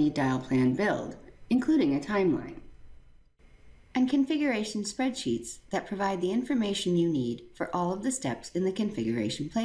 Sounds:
Speech

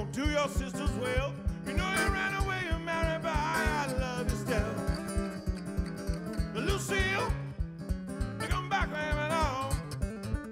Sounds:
Music, Electric guitar, Guitar, Musical instrument

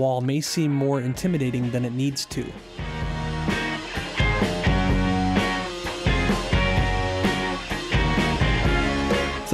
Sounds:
Speech, Music

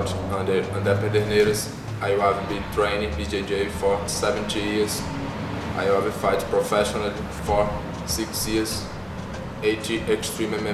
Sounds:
Speech, inside a large room or hall

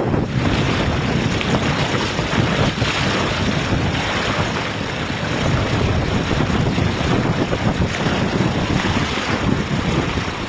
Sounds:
outside, rural or natural, Boat, Vehicle

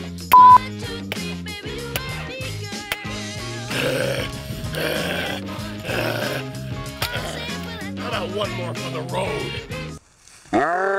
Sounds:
Music, Speech

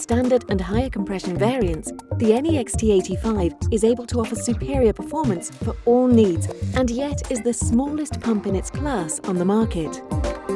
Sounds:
Music, Speech

